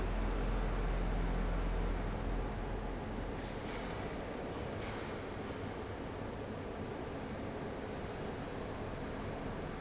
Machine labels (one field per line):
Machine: fan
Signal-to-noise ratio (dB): -6 dB